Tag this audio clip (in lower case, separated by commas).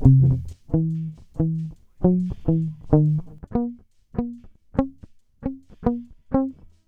musical instrument, music, plucked string instrument, guitar